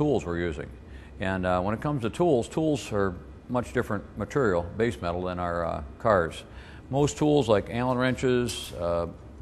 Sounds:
speech

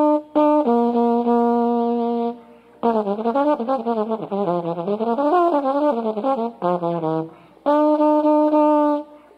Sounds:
music

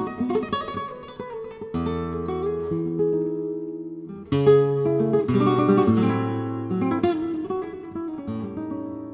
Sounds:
plucked string instrument
guitar
music
strum
bass guitar
musical instrument

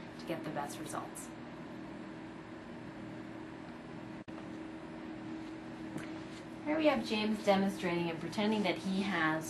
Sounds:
speech

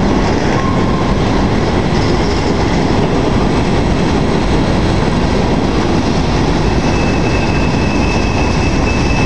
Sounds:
train
rail transport
clickety-clack
train wagon

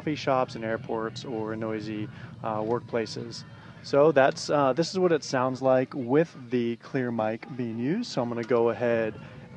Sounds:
speech

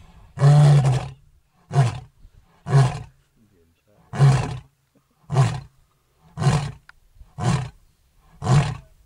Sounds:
lions roaring

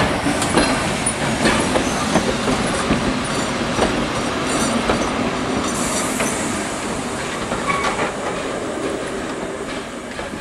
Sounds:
rail transport
train wagon
train
clickety-clack

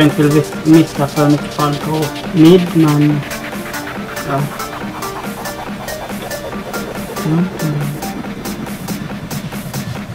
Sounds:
speech
music

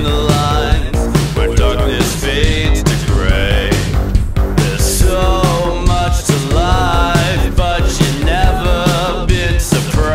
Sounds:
music

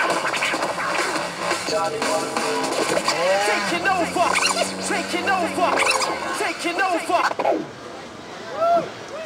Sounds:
electronic music
speech
musical instrument
scratching (performance technique)
music

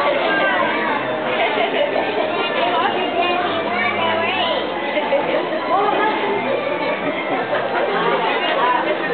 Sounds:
speech
music

